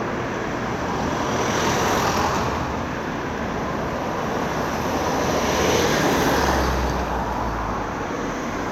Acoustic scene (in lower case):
street